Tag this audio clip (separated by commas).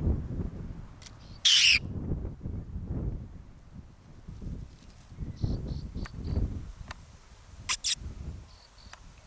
outside, rural or natural, Animal